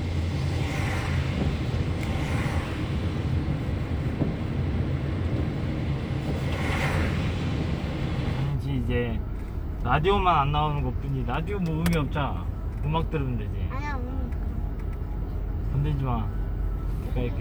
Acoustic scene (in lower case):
car